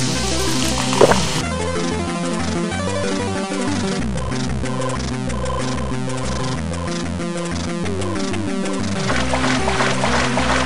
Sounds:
Music

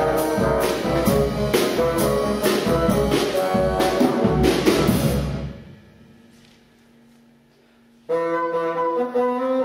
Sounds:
playing bassoon

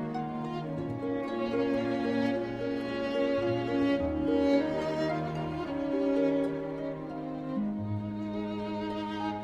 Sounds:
Music

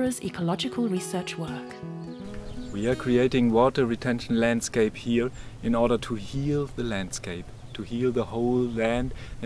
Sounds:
Music, Speech

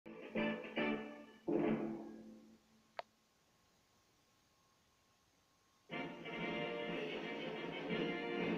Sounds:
Television, Music

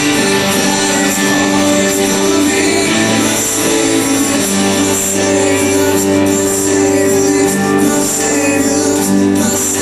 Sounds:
inside a public space, Singing, Music

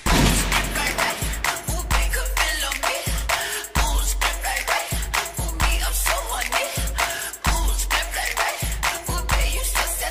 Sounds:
Music

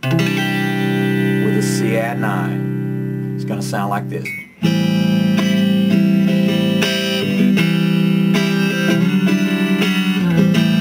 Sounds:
Musical instrument, Electric guitar, Plucked string instrument, Music, Acoustic guitar, Speech, Country, Guitar

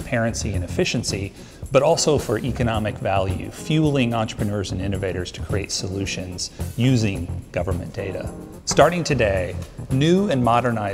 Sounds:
Music, Speech

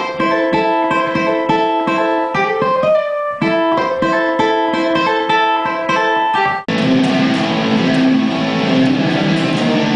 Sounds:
Guitar, Strum, Musical instrument, Plucked string instrument, Acoustic guitar, Music

